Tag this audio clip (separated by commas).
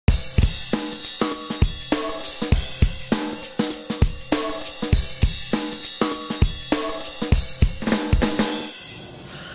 Drum kit, Drum, Percussion, Bass drum, Rimshot, Snare drum